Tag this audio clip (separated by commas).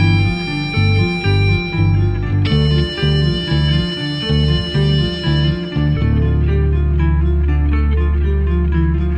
Guitar, Musical instrument, Plucked string instrument, Music, Strum